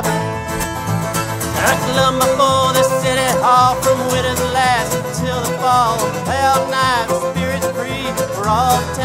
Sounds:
country, music, bluegrass

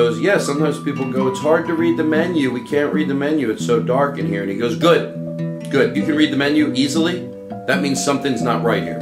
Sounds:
speech, music

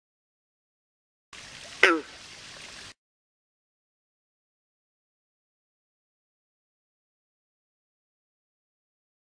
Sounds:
frog

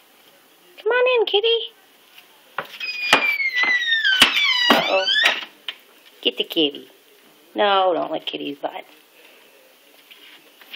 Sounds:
speech

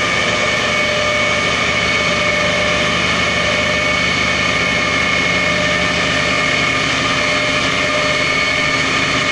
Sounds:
heavy engine (low frequency), engine, vehicle, idling

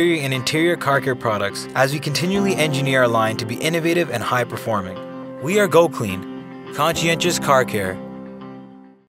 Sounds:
music, speech

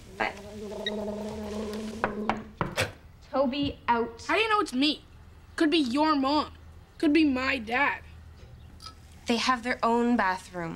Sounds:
speech

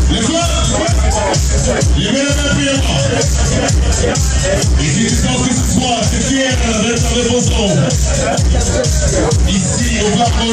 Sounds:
speech, music

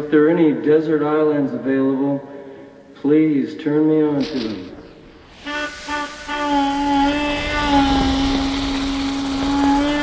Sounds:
speech

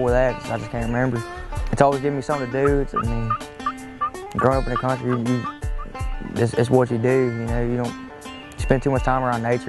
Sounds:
turkey, fowl, gobble

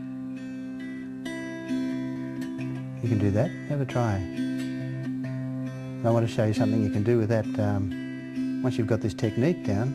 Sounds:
harp, music, strum, musical instrument, plucked string instrument

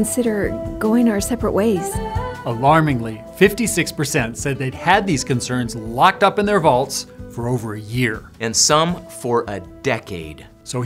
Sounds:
music, speech

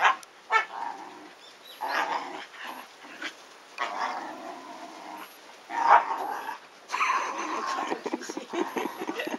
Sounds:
animal, whimper (dog), bow-wow, dog, pets

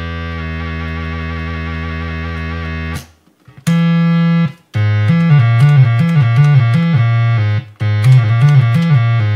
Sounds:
guitar, musical instrument, plucked string instrument, music, bass guitar

